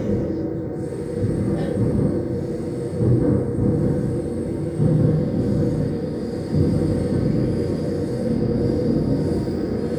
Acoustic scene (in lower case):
subway train